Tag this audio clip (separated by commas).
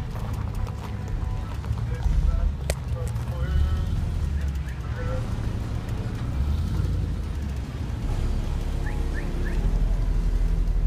Vehicle, Car